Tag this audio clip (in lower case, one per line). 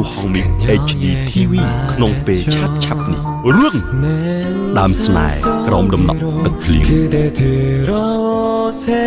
music
speech